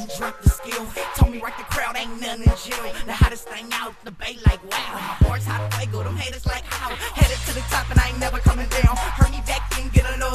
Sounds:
music, background music

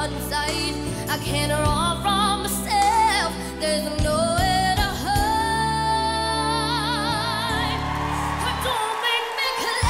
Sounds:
child singing

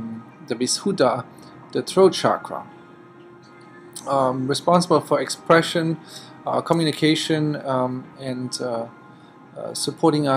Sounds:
speech, music

